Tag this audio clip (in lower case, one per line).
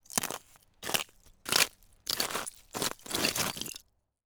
footsteps